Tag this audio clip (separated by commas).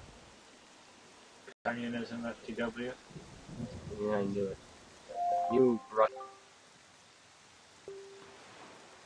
Speech